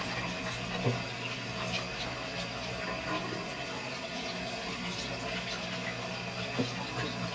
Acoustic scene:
restroom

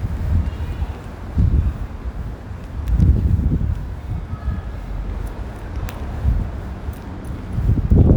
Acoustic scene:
residential area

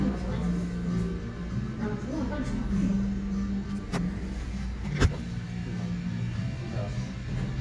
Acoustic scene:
cafe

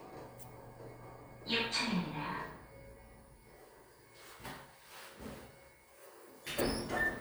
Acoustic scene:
elevator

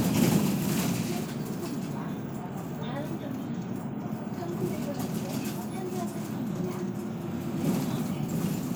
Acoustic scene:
bus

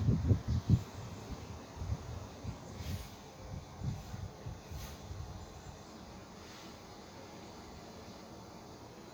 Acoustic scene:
park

